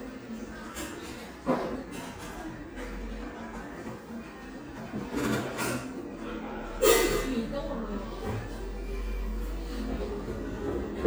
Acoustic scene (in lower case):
cafe